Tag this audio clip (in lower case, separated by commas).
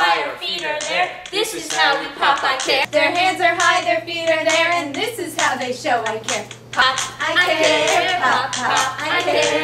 music, speech